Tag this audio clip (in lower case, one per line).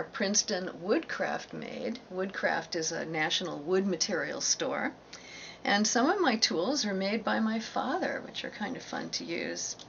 speech